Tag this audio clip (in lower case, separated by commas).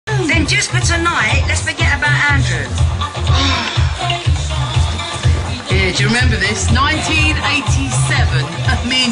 speech, music